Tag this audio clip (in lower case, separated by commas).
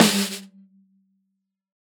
snare drum, musical instrument, music, drum, percussion